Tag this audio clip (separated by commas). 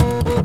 Mechanisms, Printer